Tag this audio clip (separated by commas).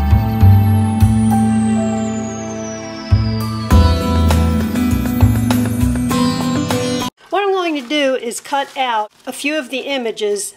Music, New-age music, Speech